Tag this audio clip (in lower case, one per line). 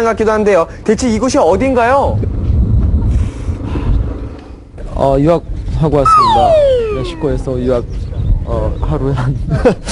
speech